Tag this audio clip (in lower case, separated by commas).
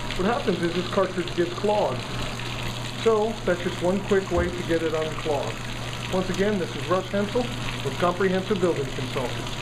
speech, stream